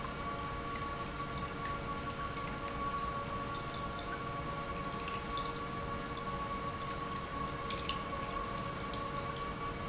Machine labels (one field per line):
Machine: pump